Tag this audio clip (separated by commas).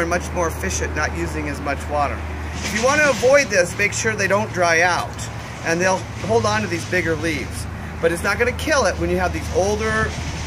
Speech